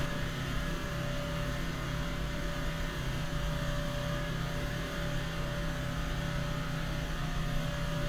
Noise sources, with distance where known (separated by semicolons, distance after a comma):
small-sounding engine